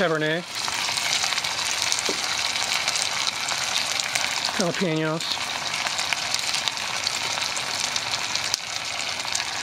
Adult man putting food in oil